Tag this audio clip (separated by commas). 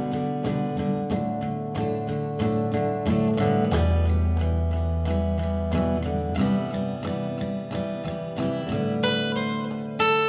Strum, Guitar, Musical instrument, Acoustic guitar, Plucked string instrument, Electric guitar, Music